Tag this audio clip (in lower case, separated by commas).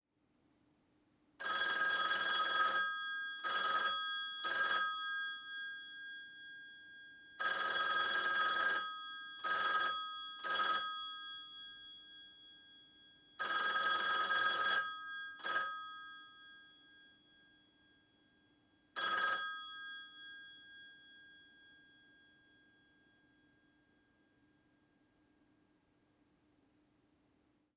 alarm, telephone